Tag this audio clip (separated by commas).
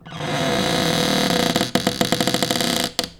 home sounds, Cupboard open or close